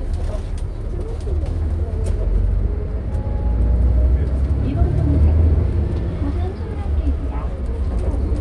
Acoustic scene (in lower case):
bus